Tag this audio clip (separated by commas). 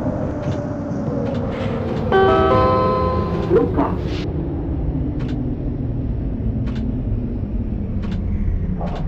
Train, Vehicle, Subway